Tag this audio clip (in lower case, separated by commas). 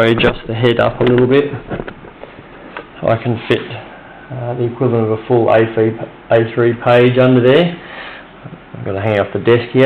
speech